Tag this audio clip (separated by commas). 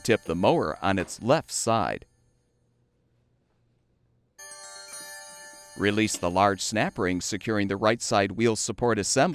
Music, Speech